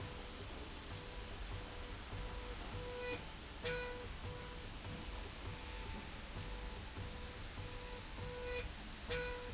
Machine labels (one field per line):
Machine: slide rail